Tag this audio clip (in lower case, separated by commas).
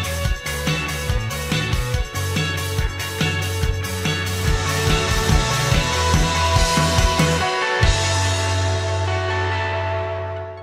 exciting music, music